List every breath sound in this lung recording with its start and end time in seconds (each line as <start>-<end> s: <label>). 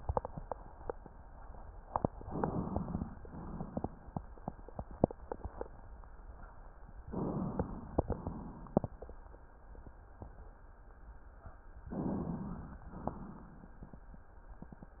2.18-3.15 s: inhalation
3.21-4.18 s: exhalation
7.06-8.03 s: inhalation
8.12-9.09 s: exhalation
11.92-12.88 s: inhalation
12.96-13.93 s: exhalation